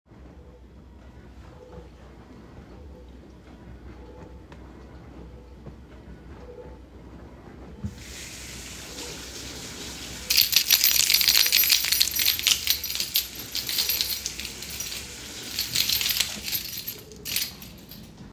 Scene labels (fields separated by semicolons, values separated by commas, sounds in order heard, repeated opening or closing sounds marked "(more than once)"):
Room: kitchen; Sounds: running water, keys